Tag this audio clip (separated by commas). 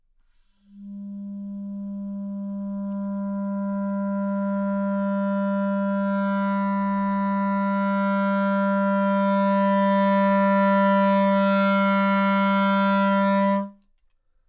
Wind instrument, Music, Musical instrument